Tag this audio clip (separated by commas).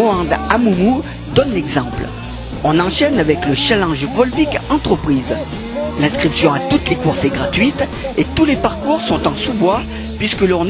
Music, outside, urban or man-made, Speech